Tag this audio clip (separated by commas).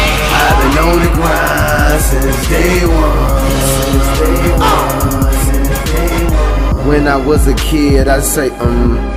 Dance music, Music